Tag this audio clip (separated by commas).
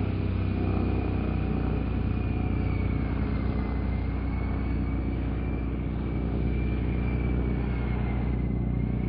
Rumble